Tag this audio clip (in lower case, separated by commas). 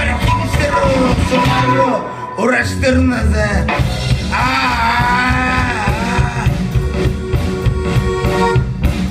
singing, music